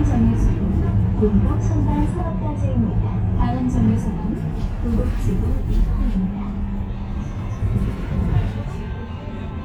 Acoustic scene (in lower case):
bus